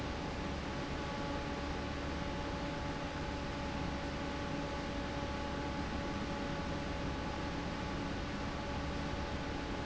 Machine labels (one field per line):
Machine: fan